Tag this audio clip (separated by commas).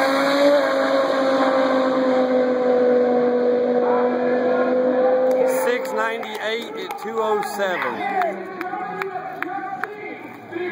Car passing by, Vehicle, Motor vehicle (road), Speech, Car